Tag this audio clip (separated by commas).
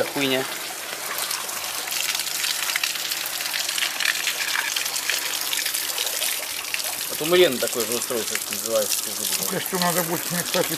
Water, Water tap